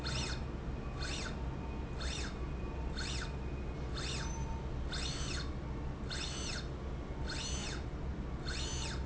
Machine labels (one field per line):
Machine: slide rail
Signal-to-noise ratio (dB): -6 dB